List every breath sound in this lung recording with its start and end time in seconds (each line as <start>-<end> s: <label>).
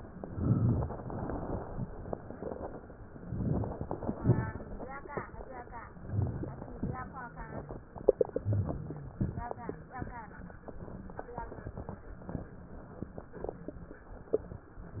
0.18-1.05 s: inhalation
3.07-3.83 s: crackles
3.09-3.85 s: inhalation
3.84-4.79 s: exhalation
3.84-4.79 s: crackles
5.89-6.76 s: crackles
5.92-6.80 s: inhalation
6.79-7.67 s: exhalation
6.79-7.67 s: crackles
8.32-9.13 s: inhalation
8.32-9.13 s: crackles
9.18-10.00 s: exhalation
9.18-10.00 s: crackles